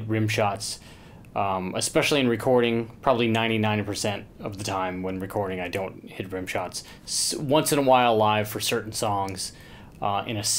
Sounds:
speech

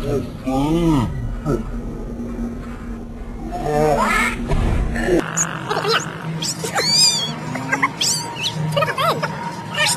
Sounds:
pets
speech
cat

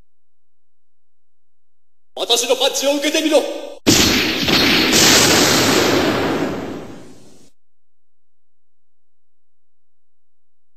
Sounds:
speech

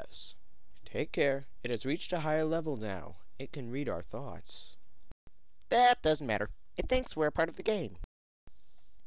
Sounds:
speech
narration

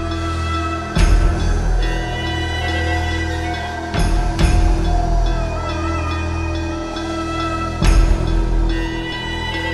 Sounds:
music

